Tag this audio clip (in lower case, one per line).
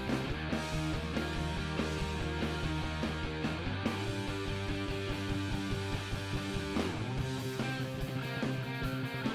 music
musical instrument
guitar